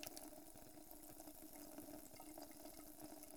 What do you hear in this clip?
water tap